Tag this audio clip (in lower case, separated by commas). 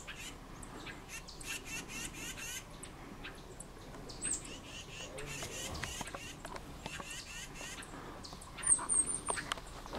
bird call, outside, rural or natural